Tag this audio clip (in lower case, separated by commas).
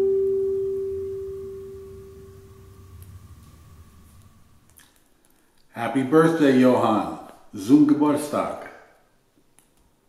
bowed string instrument, music, musical instrument, speech